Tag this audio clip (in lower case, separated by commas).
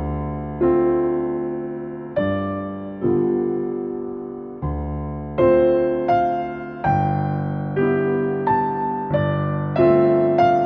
music